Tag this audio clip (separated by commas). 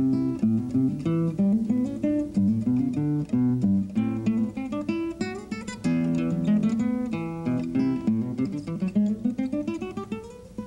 Musical instrument, Music, Plucked string instrument, Acoustic guitar, Guitar